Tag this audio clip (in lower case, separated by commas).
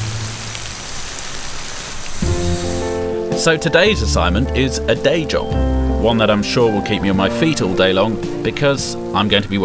rain on surface, rain